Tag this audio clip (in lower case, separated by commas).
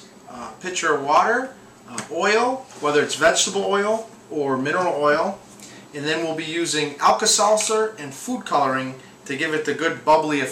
speech